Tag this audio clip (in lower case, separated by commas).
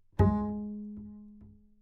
bowed string instrument, music, musical instrument